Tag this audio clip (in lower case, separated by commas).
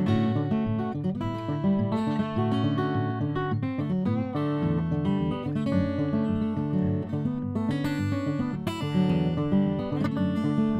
acoustic guitar, music